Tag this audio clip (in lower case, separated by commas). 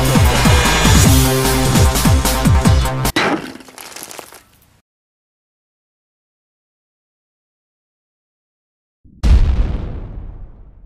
lighting firecrackers